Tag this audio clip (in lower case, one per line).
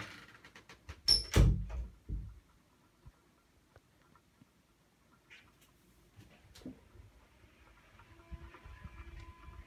bathroom ventilation fan running